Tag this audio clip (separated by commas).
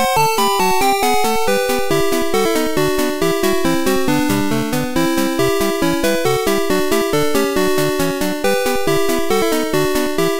Music